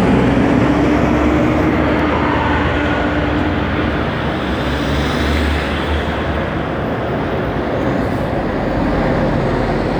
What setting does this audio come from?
street